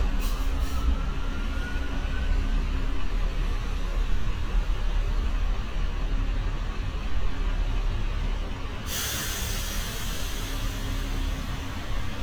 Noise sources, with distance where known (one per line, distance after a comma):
engine of unclear size, near